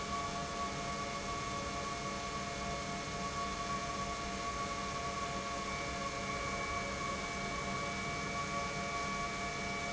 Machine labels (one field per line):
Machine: pump